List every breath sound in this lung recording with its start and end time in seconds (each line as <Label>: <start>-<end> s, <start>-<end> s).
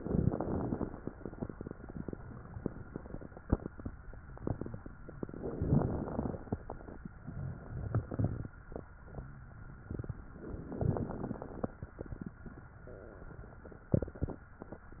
Inhalation: 0.00-0.86 s, 5.20-6.38 s, 10.68-11.74 s
Exhalation: 7.16-8.54 s